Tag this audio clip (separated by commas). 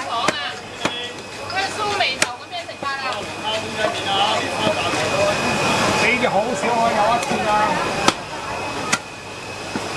chopping food